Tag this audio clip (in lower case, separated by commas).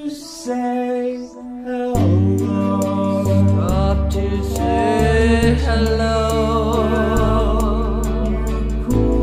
music